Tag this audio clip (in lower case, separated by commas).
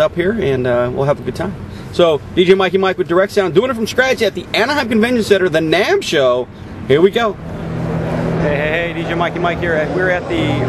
speech